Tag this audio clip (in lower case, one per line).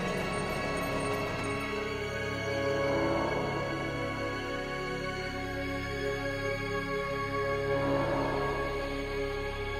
scary music
music